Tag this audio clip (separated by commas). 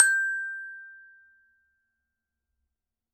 Music, Glockenspiel, Percussion, Musical instrument, Mallet percussion